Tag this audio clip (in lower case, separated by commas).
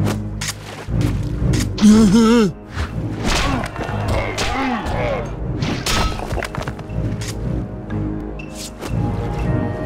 music